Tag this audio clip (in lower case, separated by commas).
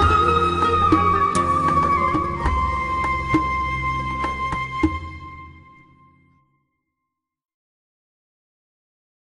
sad music, music